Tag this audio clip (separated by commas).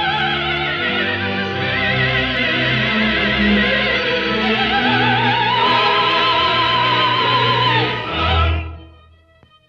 Opera, Music